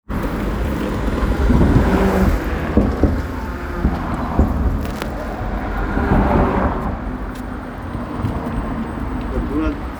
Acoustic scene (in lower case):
street